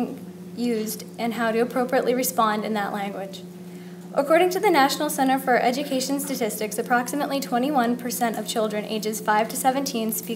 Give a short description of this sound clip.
A woman speaking